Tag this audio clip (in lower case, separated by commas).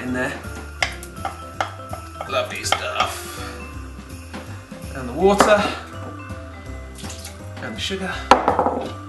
speech, music